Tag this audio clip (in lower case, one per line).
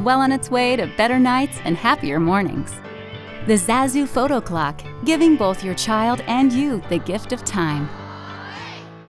music
speech